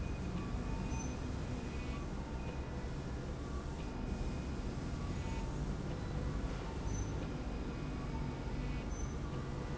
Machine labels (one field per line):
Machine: slide rail